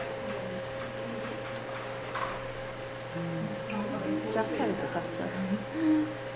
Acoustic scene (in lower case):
crowded indoor space